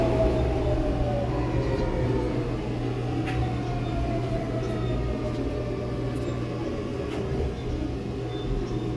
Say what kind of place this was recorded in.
subway train